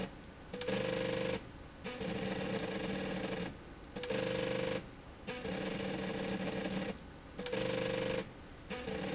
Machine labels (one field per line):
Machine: slide rail